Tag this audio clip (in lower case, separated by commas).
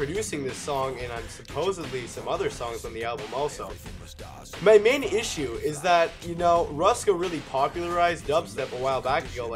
music, speech, dubstep